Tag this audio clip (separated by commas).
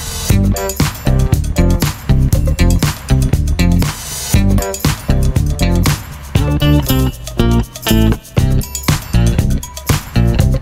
Musical instrument, Music